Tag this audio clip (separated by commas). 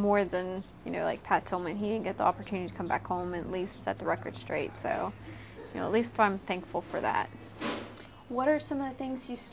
inside a small room, Speech